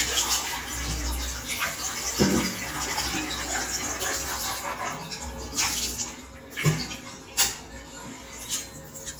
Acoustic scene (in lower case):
restroom